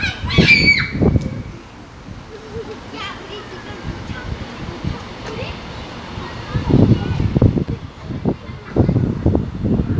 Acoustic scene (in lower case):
park